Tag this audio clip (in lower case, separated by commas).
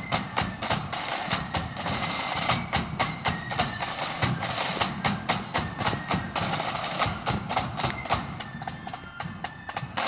music, flute